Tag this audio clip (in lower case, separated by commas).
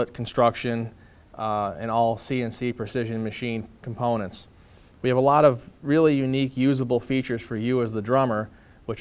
speech